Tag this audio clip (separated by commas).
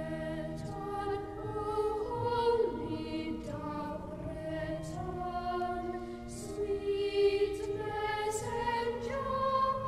Music